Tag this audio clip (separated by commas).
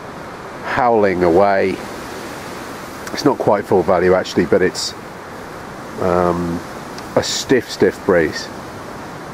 Speech, Wind noise (microphone)